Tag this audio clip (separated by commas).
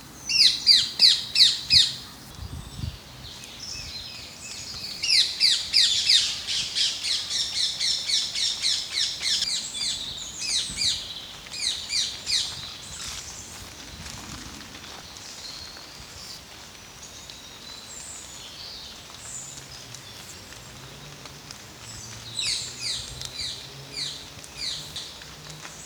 Wild animals, Animal, bird call, Bird